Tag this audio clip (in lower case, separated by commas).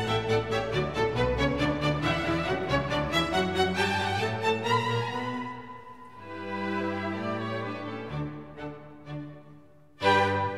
music